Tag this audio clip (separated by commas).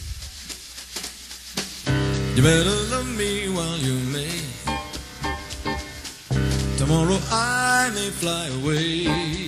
Jazz, Music, Singing